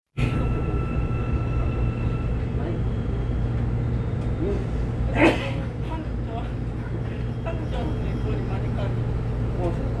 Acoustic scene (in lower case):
subway train